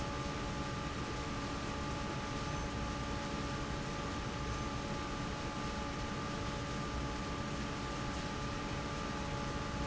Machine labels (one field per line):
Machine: fan